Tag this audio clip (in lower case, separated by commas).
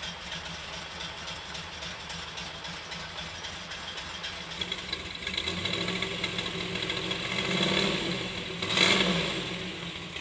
medium engine (mid frequency), engine starting, vehicle, car